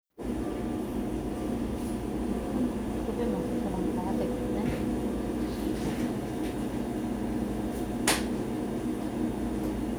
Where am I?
in a cafe